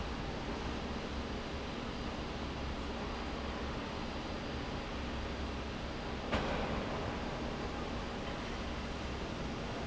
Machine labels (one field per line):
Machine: fan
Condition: normal